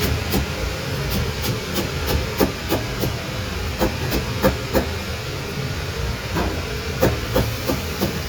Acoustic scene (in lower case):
kitchen